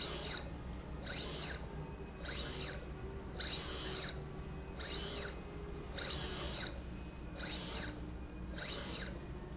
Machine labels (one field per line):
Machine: slide rail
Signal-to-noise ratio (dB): 0 dB